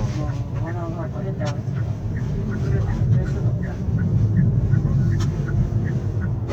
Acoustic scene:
car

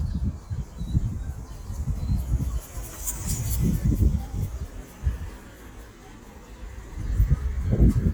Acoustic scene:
park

